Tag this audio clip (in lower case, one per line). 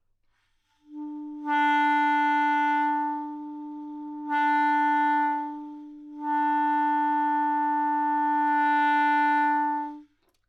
woodwind instrument
music
musical instrument